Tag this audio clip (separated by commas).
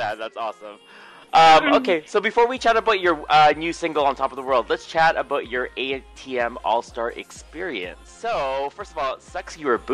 Speech